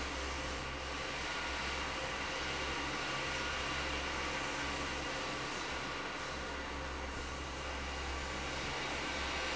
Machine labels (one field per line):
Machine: fan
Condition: normal